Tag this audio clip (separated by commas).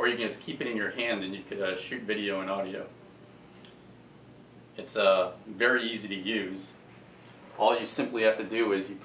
Speech